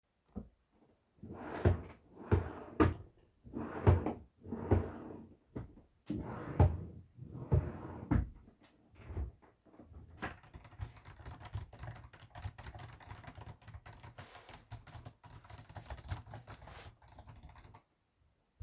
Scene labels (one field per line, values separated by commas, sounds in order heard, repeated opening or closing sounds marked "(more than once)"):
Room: office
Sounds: wardrobe or drawer, keyboard typing